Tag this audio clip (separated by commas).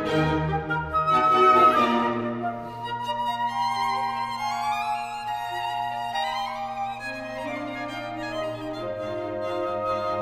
Music, Musical instrument, Violin